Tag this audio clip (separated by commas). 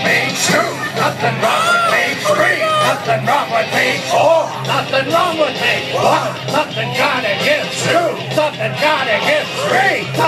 Male singing, Music, Speech